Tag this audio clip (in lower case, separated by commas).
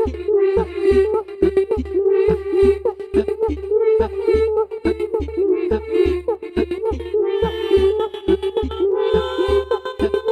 music